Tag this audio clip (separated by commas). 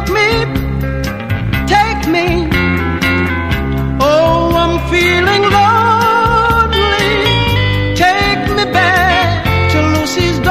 Music